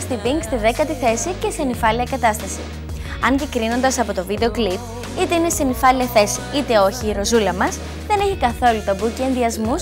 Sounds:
Speech, Music

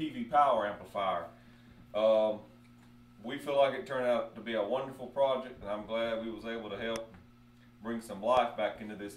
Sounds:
Speech

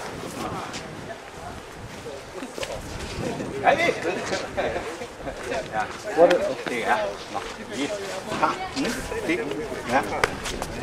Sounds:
Speech

